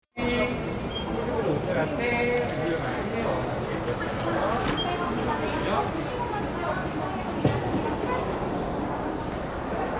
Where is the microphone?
in a cafe